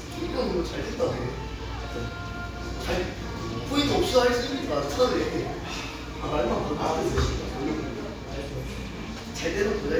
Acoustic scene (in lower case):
restaurant